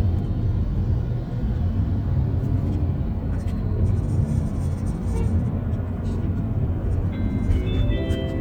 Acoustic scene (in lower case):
car